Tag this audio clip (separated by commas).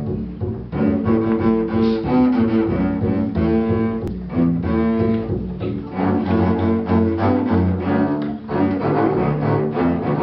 playing double bass